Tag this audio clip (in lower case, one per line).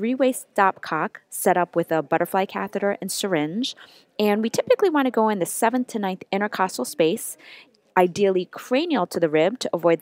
speech